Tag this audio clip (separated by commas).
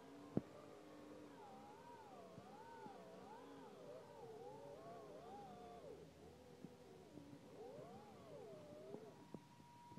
Car